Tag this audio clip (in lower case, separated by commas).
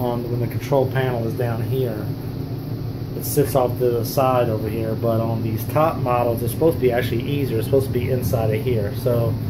inside a small room, speech